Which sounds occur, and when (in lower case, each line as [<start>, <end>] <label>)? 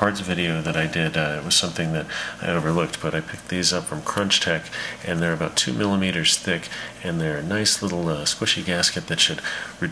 [0.00, 2.01] male speech
[0.00, 9.91] mechanisms
[2.01, 2.38] breathing
[2.35, 4.61] male speech
[4.60, 5.02] breathing
[4.99, 6.66] male speech
[6.60, 6.94] breathing
[6.93, 9.37] male speech
[9.37, 9.76] breathing
[9.78, 9.91] male speech